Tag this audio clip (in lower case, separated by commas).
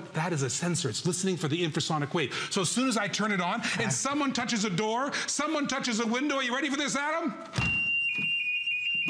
alarm, speech